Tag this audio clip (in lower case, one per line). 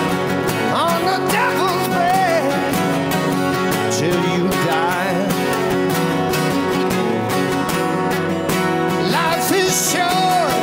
music